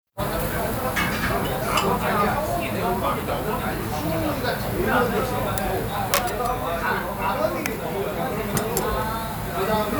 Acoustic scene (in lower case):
restaurant